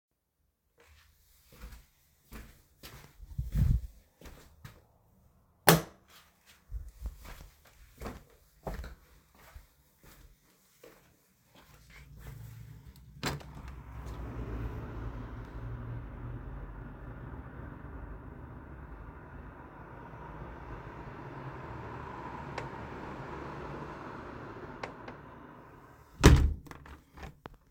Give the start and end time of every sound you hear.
[0.51, 5.33] footsteps
[5.54, 6.02] light switch
[6.09, 13.00] footsteps
[13.12, 13.64] window
[26.02, 27.35] window

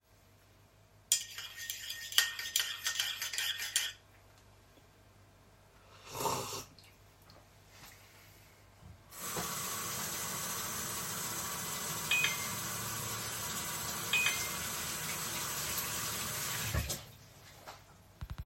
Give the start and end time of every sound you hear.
[1.06, 4.03] cutlery and dishes
[9.08, 17.10] running water
[12.00, 12.50] phone ringing
[14.02, 14.55] phone ringing

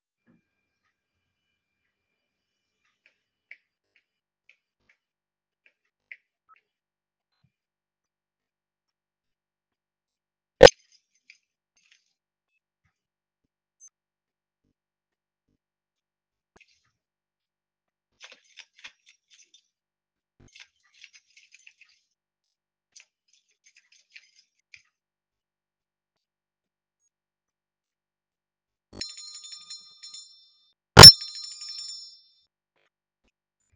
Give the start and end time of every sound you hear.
[0.09, 9.32] footsteps
[10.21, 14.02] keys
[16.34, 25.27] keys
[28.58, 33.73] bell ringing

